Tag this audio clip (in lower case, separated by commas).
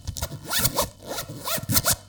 home sounds, zipper (clothing)